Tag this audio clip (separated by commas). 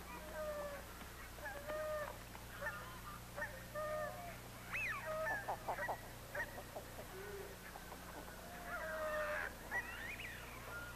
Honk, Fowl, Goose